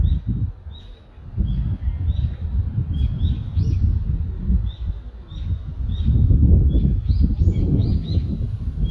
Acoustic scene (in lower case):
residential area